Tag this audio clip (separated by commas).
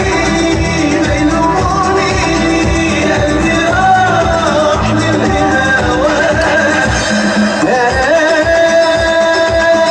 Music